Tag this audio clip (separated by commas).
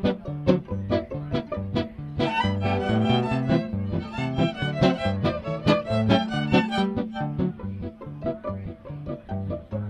Swing music, Music, fiddle